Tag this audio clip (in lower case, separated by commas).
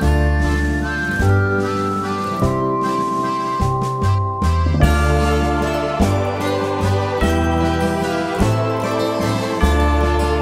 music